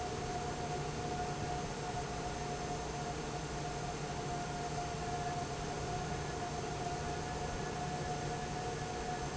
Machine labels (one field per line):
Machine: fan